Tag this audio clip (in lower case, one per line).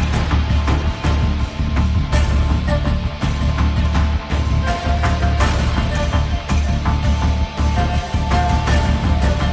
music